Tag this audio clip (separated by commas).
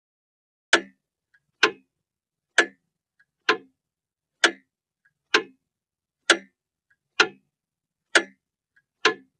Clock